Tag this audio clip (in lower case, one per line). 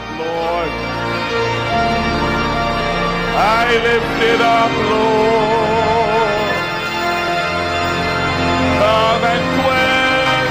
music